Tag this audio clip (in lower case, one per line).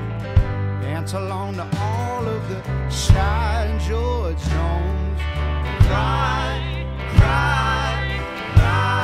music